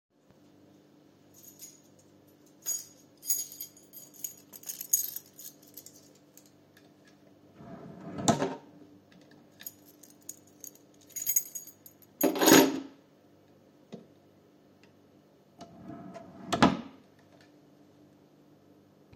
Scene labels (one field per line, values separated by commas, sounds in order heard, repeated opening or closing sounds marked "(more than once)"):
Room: hallway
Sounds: keys, wardrobe or drawer (more than once)